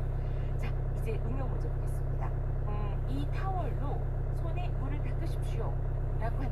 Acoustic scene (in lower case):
car